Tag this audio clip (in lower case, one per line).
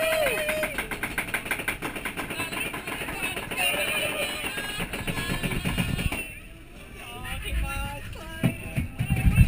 speech